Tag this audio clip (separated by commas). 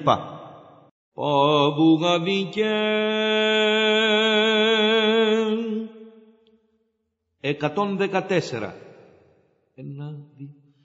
Speech